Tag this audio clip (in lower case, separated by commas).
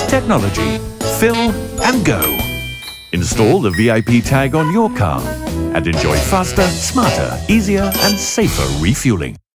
music, speech